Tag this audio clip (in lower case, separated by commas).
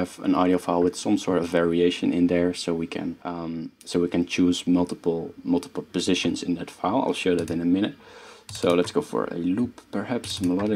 speech